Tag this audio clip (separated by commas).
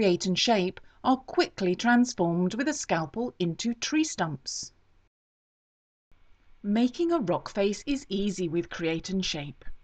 Speech, Narration